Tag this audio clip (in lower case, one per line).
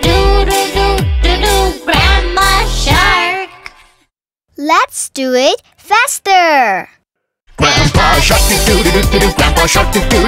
child singing